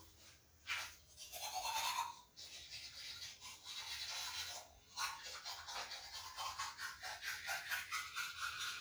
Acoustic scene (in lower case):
restroom